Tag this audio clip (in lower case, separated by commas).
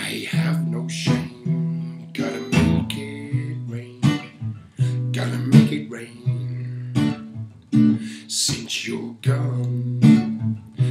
music